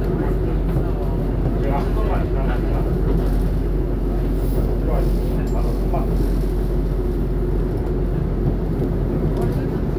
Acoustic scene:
subway train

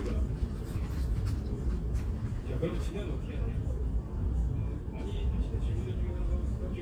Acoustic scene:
crowded indoor space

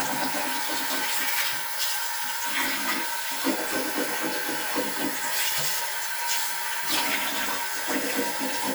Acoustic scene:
restroom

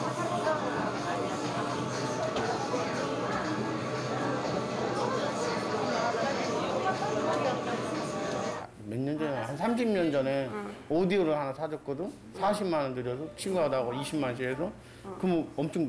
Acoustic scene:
crowded indoor space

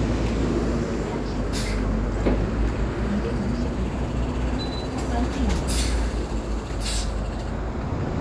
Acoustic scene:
street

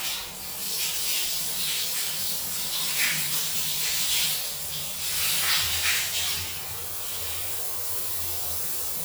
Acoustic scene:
restroom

